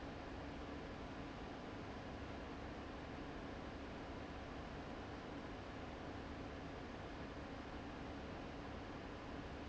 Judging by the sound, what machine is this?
fan